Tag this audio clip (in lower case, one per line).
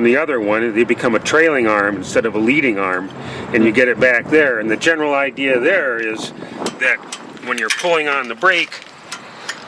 speech